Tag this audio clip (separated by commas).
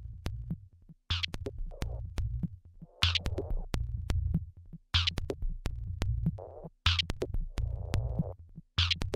Synthesizer, Music